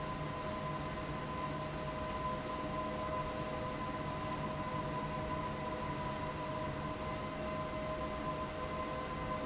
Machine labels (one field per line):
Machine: fan